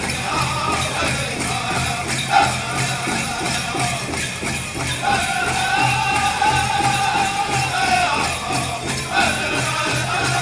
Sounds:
Music

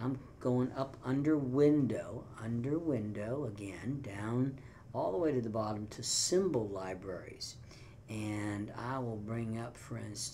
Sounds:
Speech

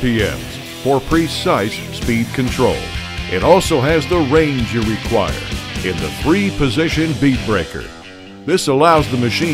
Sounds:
Speech, Music

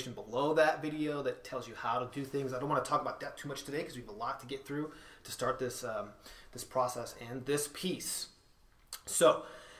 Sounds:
Speech

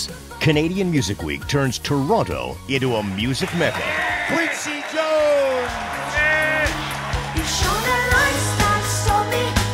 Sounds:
Music, Speech

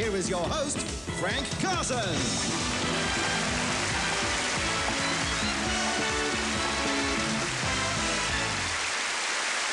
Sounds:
Speech, Music

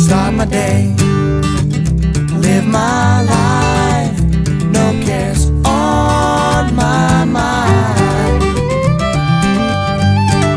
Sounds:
Musical instrument, Music

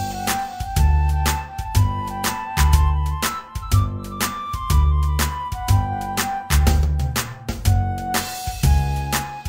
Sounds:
Music

